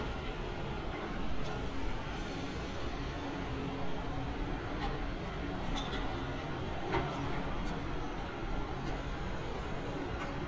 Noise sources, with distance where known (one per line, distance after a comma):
non-machinery impact